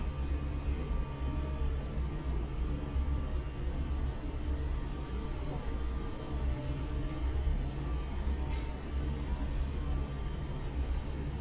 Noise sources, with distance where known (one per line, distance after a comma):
engine of unclear size